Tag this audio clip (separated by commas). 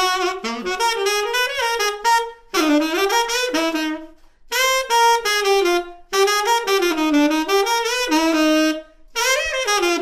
playing saxophone